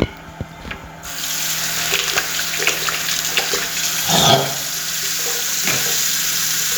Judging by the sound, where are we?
in a restroom